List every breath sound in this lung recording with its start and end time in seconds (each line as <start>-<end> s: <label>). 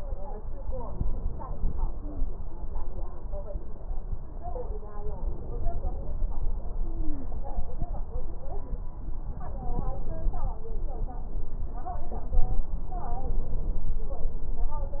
1.95-2.28 s: stridor
6.80-7.36 s: stridor
12.74-13.95 s: inhalation